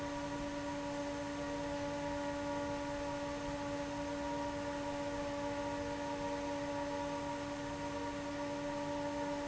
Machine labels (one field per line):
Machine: fan